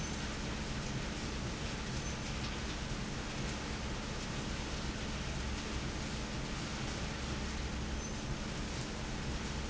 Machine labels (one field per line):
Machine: fan